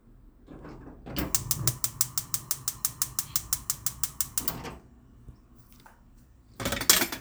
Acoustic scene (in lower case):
kitchen